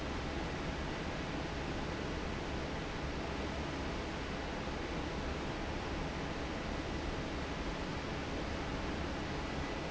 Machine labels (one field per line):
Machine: fan